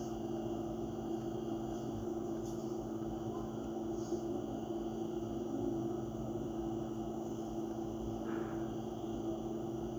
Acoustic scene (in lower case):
bus